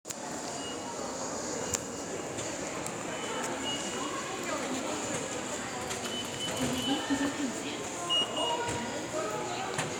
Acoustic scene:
subway station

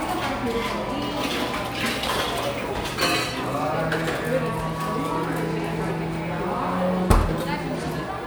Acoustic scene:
crowded indoor space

